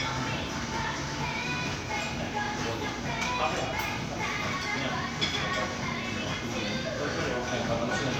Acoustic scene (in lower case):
crowded indoor space